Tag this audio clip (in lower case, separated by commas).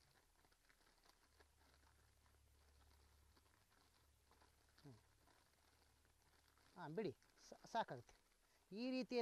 outside, rural or natural, speech